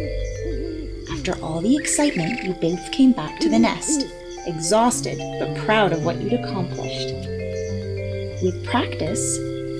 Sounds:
music, background music, speech, bird

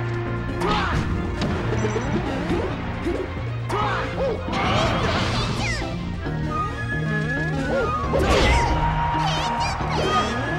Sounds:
speech, music, smash

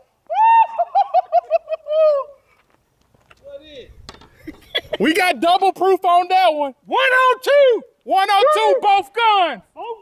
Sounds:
speech

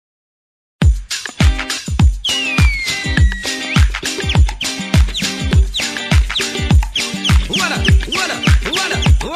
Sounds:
disco

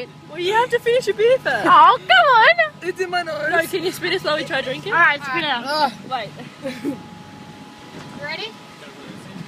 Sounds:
speech

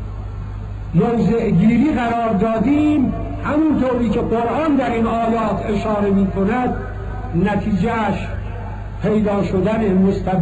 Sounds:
male speech, narration, speech

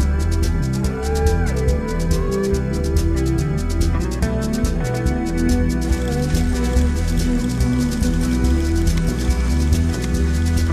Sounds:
music, speech

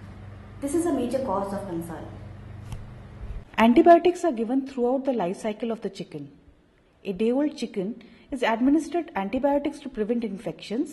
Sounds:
speech

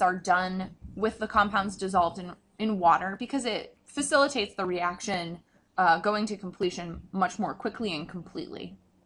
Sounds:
speech

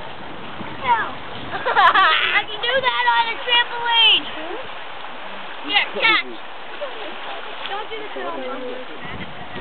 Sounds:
speech

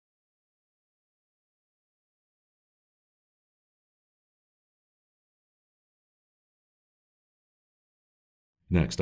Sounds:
speech

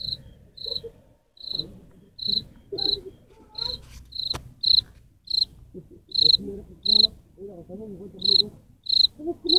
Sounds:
cricket chirping

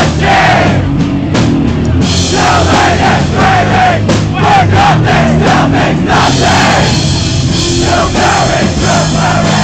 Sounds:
roll, music

